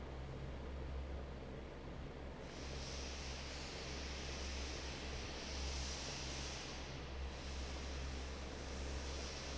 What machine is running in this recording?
fan